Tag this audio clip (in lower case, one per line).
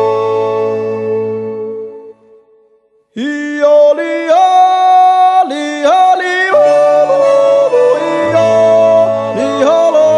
yodelling